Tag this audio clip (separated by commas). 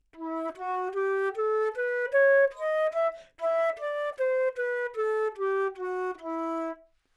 Musical instrument, Wind instrument, Music